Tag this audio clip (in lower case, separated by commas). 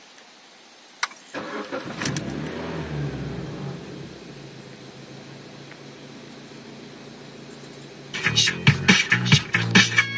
music, car engine starting, engine starting, vehicle